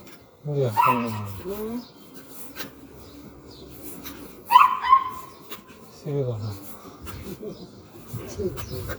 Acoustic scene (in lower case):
residential area